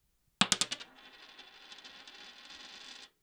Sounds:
Domestic sounds, Coin (dropping)

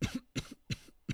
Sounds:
Respiratory sounds, Cough

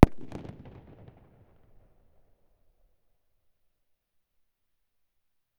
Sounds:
Explosion, Fireworks

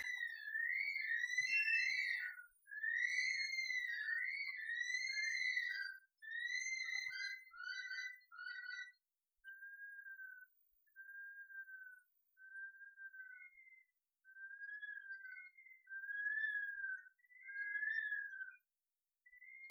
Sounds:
Animal, Bird, Wild animals

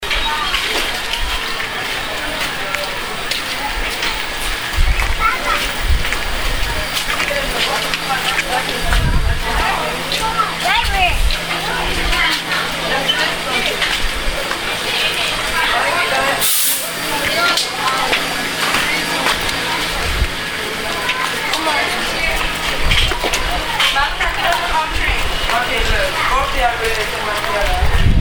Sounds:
Hiss

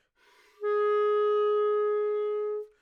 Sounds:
Musical instrument, Music, woodwind instrument

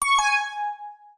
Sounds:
Alarm

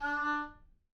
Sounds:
Musical instrument, woodwind instrument, Music

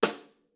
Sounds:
Music, Percussion, Drum, Snare drum, Musical instrument

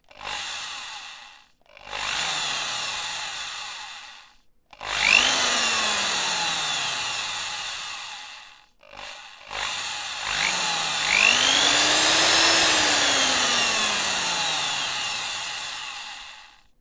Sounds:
Drill, Tools, Power tool

